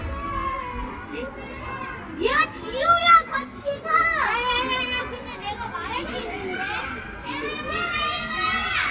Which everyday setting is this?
park